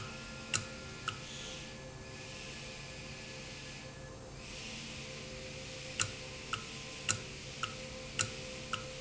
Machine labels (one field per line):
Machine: valve